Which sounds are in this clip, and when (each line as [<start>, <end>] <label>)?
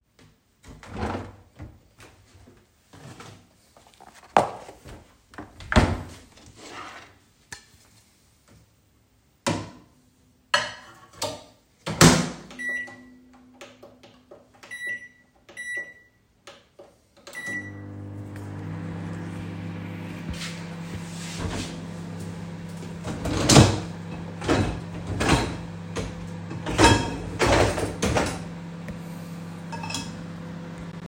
[4.12, 11.61] cutlery and dishes
[11.71, 31.08] microwave
[23.03, 23.91] cutlery and dishes
[24.40, 25.62] cutlery and dishes
[26.65, 27.26] cutlery and dishes
[27.40, 28.45] cutlery and dishes
[29.64, 30.14] cutlery and dishes